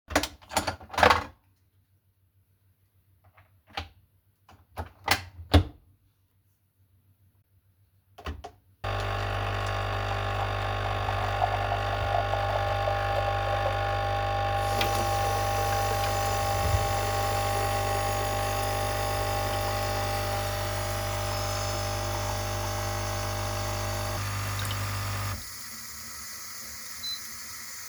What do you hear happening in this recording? I turned on the coffee machine, went to the sink and made a glass of water. Then i turned the water faucet off.